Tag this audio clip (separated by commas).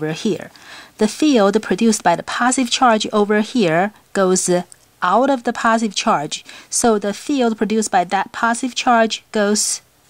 Speech